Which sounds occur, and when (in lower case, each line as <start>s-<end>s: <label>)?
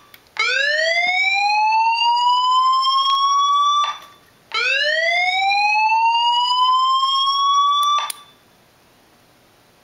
0.0s-0.1s: beep
0.0s-9.8s: background noise
0.1s-0.2s: tick
0.3s-4.2s: siren
1.0s-1.1s: tick
3.0s-3.1s: tick
4.5s-8.4s: siren